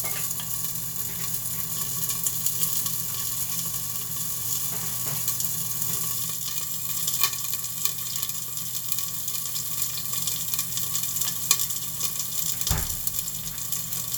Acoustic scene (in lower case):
kitchen